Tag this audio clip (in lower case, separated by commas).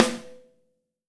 percussion, snare drum, music, drum, musical instrument